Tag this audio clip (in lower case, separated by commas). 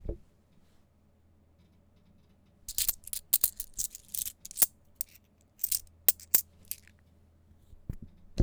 domestic sounds, coin (dropping)